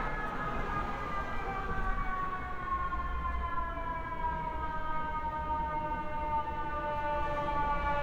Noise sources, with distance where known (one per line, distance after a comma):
medium-sounding engine
siren, far